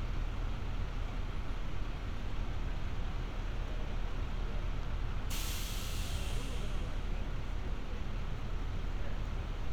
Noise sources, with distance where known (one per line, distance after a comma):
unidentified human voice, near